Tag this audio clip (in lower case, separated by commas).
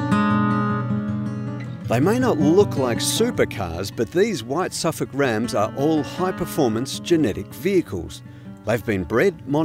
speech, music